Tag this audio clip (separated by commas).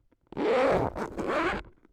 home sounds, Zipper (clothing)